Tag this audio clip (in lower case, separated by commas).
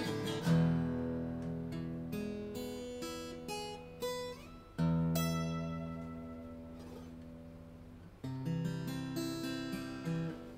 music